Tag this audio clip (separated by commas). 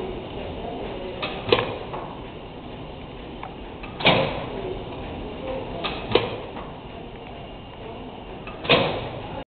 Engine